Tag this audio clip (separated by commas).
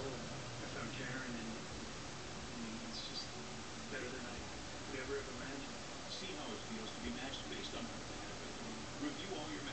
Speech